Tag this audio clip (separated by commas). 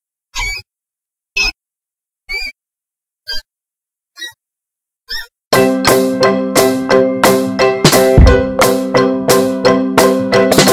mouse squeaking